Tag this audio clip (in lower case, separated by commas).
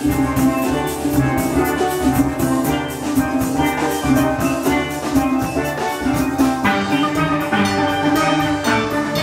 music, musical instrument, steelpan